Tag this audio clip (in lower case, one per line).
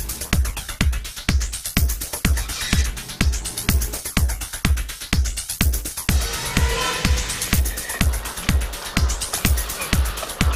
music